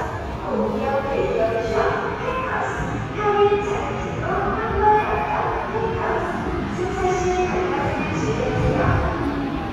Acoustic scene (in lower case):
subway station